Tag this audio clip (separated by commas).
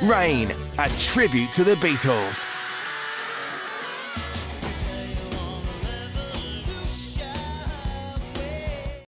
Music, Speech